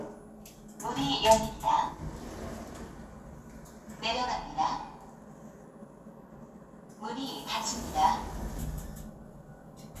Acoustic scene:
elevator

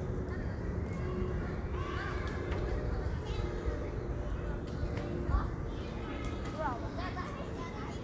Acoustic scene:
park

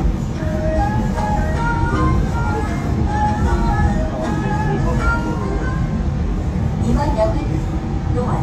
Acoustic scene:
subway train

